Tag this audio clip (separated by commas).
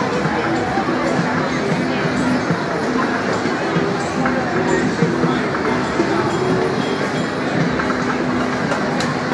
Crowd, Music, Speech